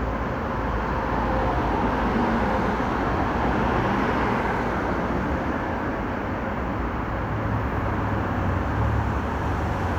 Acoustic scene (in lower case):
street